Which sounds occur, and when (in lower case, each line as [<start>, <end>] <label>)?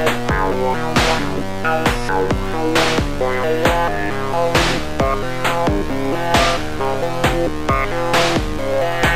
[0.00, 9.15] music
[0.00, 9.15] sound effect